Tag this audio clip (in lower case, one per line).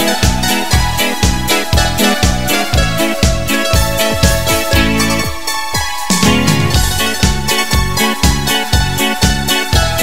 music